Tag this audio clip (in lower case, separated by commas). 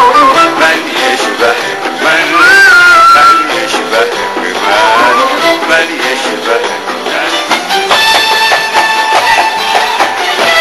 music